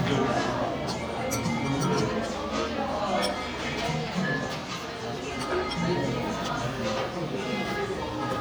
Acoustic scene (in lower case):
cafe